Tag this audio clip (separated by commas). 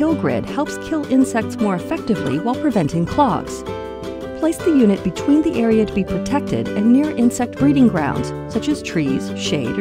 Speech, Music